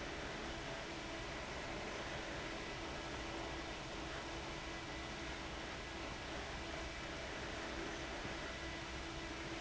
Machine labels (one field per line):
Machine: fan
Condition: abnormal